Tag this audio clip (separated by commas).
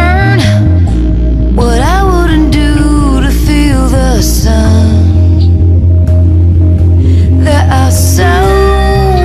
Music, Disco